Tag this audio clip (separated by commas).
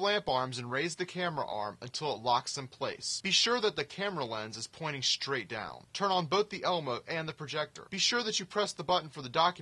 Speech